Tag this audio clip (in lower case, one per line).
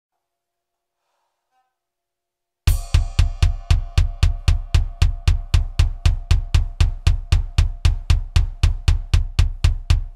playing double bass